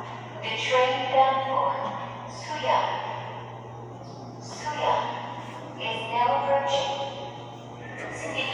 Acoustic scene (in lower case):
subway station